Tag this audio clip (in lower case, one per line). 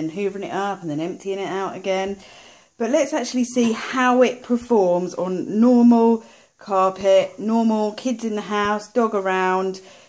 speech